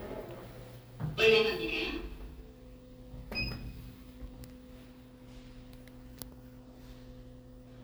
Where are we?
in an elevator